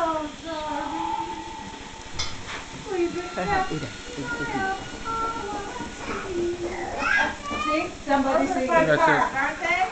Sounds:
female singing
speech
music

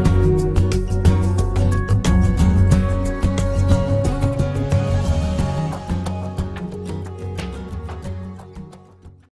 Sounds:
music

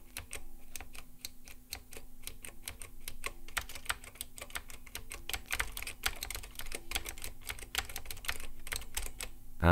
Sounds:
typing on computer keyboard

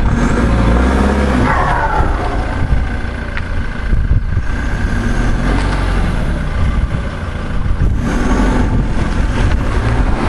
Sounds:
clatter

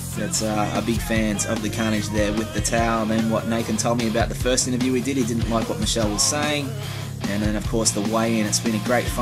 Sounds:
speech
music

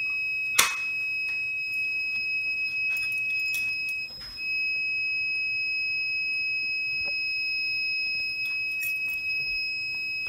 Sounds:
fire alarm

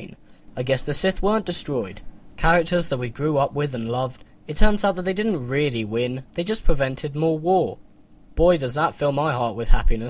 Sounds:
narration
speech

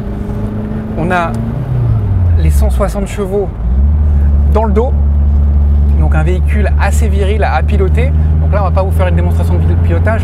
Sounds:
car passing by

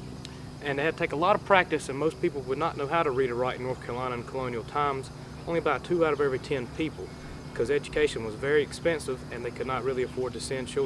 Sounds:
speech

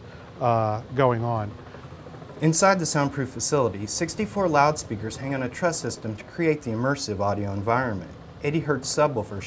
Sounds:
speech

